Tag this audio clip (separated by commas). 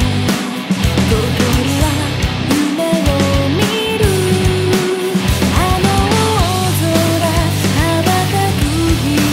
Music